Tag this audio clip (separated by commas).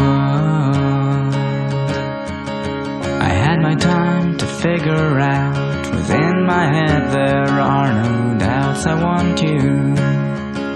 Music